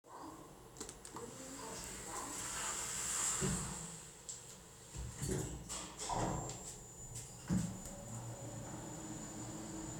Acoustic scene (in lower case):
elevator